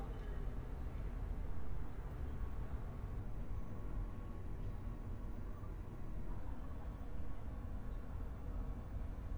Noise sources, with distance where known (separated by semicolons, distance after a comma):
person or small group talking, far